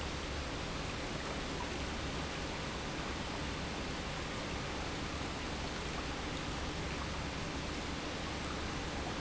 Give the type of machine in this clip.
pump